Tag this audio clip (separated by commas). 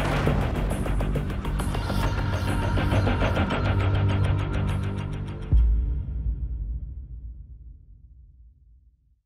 Music